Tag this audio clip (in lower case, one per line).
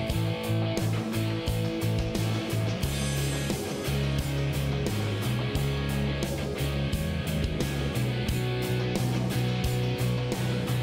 music